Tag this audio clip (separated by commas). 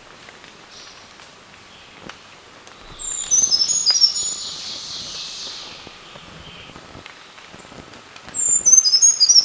wood thrush calling